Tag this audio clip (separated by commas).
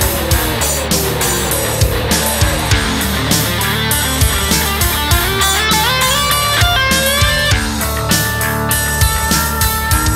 Music